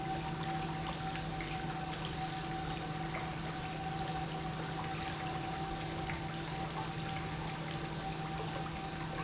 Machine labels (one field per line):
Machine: pump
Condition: normal